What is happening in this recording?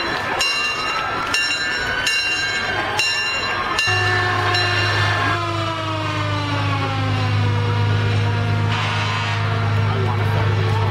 Bells and sirens ring, crows of people talk